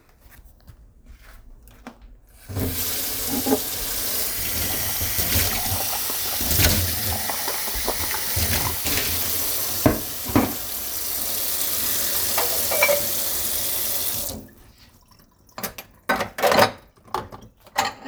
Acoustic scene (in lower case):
kitchen